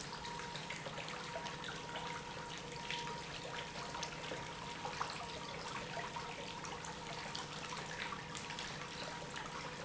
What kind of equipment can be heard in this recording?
pump